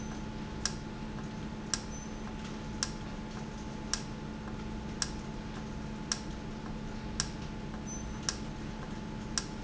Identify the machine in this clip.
valve